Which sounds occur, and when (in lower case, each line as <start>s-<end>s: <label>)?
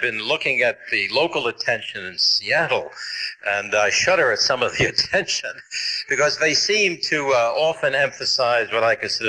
0.0s-9.2s: man speaking
4.7s-6.1s: laughter